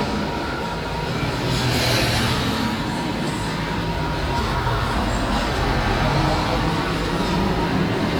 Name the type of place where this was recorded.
street